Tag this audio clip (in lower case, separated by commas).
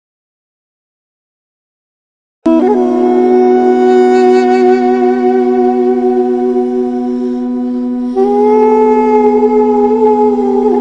music, inside a small room